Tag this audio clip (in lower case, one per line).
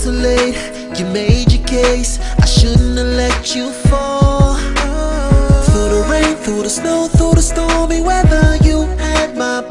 music